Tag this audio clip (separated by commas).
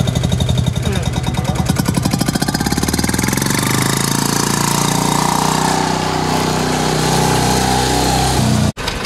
Speech, Vehicle, Motor vehicle (road)